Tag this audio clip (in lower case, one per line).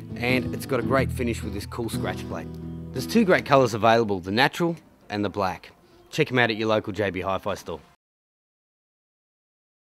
musical instrument
electric guitar
acoustic guitar
plucked string instrument
speech
strum
guitar
music